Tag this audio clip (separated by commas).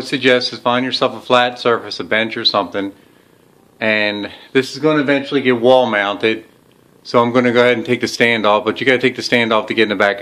Speech